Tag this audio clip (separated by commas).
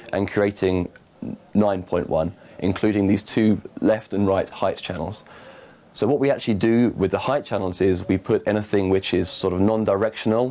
Speech